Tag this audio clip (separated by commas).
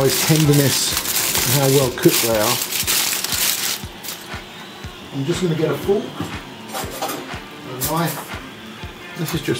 Music, Speech